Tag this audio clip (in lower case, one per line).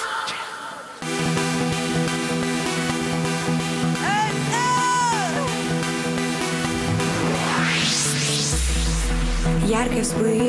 music